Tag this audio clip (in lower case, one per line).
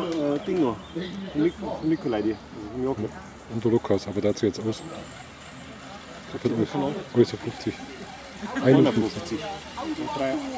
speech